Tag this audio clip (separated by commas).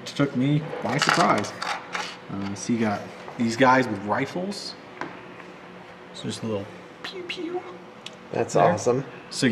Speech, inside a small room